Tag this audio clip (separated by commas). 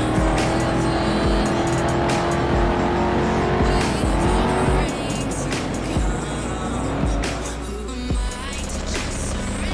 Music